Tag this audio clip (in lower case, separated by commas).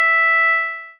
musical instrument, piano, keyboard (musical), music